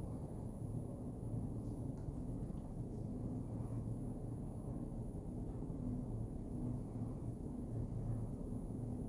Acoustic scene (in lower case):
elevator